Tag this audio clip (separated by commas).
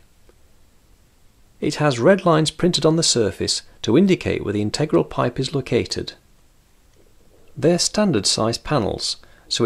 Speech